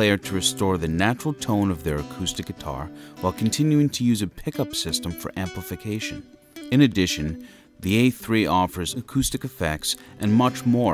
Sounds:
musical instrument, speech, electric guitar, music, guitar

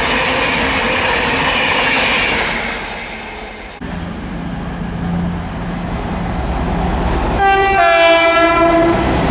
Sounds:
train horn, rail transport, underground, train, train wagon

